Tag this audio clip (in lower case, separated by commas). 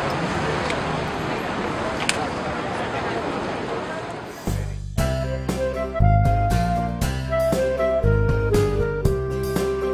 speech, music